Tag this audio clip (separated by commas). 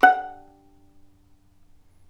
Musical instrument, Bowed string instrument, Music